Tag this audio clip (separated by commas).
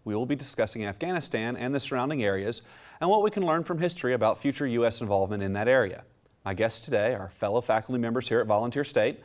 Speech